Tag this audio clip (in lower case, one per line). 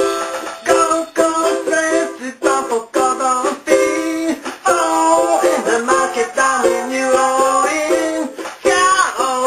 inside a small room
music
ukulele